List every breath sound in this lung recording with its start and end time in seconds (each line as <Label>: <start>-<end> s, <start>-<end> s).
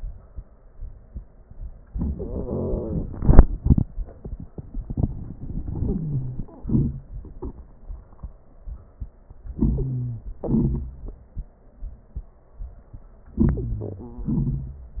Wheeze: 5.78-6.46 s, 9.58-10.27 s, 13.45-14.09 s